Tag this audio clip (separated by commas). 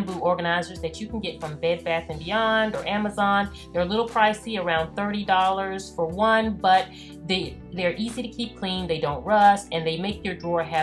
Speech